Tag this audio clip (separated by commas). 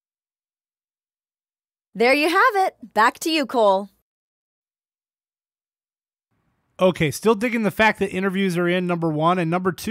Speech